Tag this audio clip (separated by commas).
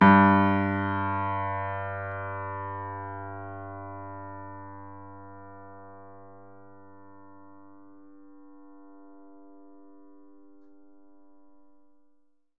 Music, Musical instrument, Piano, Keyboard (musical)